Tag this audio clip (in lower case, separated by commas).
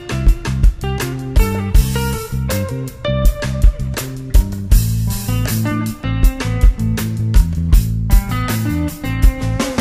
music